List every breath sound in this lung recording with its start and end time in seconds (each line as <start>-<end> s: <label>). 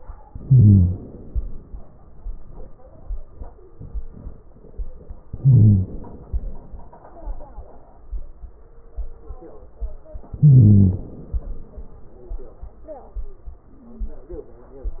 0.26-1.65 s: inhalation
5.27-6.33 s: inhalation
10.37-11.73 s: inhalation